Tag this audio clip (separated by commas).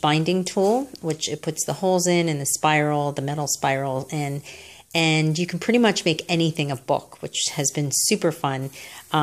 Speech